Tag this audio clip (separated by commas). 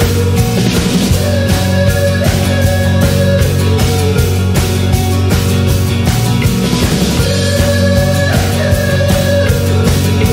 Rock music, Music